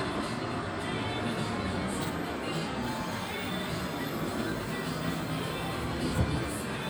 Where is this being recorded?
on a street